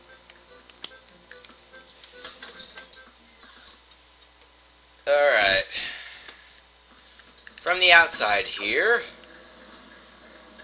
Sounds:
speech
music

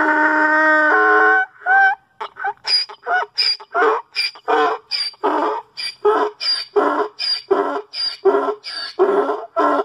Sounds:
ass braying

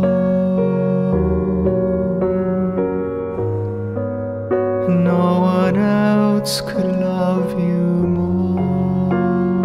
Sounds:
music
keyboard (musical)
electric piano

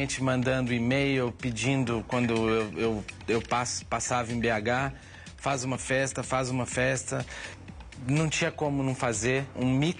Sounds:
music
speech

